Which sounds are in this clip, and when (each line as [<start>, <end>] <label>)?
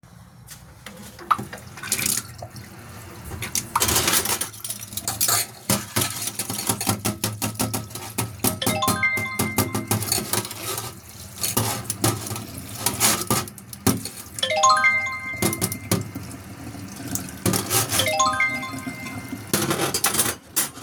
[1.67, 20.82] running water
[3.35, 16.19] cutlery and dishes
[8.51, 9.98] phone ringing
[14.34, 15.75] phone ringing
[17.35, 20.73] cutlery and dishes
[18.06, 19.13] phone ringing